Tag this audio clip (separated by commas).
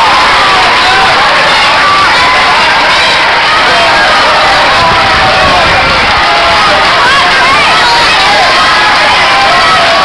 Speech